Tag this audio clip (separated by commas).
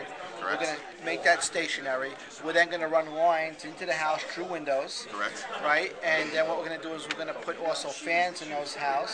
Speech